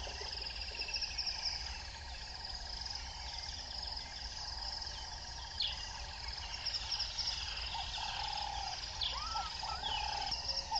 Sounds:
animal

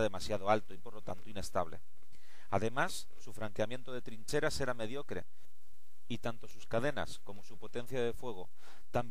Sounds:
speech

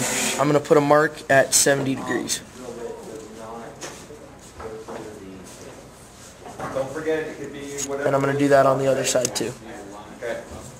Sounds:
speech

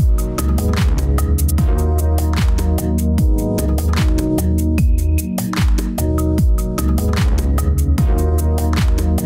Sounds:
music

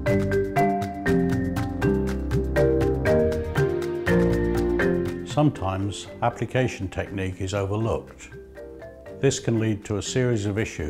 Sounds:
speech, music

